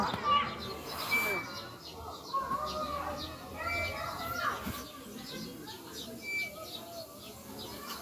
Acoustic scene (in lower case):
residential area